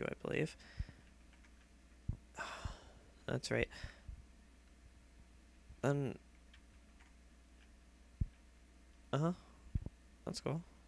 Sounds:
speech

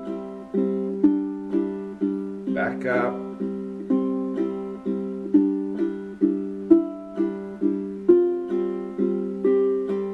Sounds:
plucked string instrument
musical instrument
speech
music
guitar
ukulele

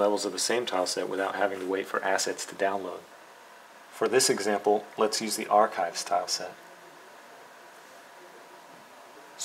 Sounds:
speech

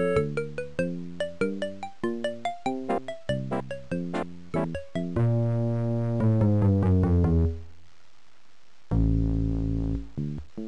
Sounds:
music

